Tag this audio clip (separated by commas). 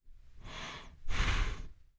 Respiratory sounds, Breathing